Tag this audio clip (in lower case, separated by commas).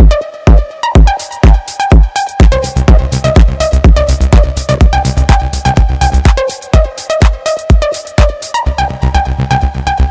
electronic music, music, techno